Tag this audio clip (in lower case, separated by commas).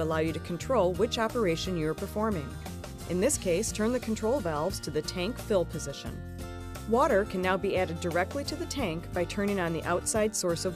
music, speech